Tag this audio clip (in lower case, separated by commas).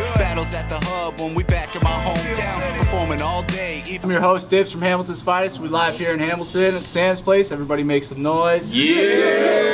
music, speech